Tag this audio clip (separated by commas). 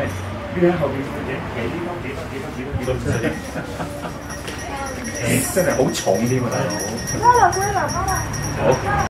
Speech